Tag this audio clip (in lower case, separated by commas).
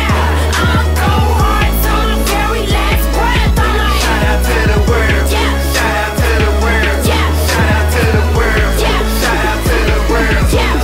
music